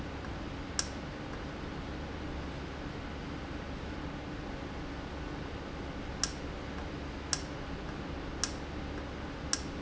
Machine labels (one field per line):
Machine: valve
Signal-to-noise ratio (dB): -6 dB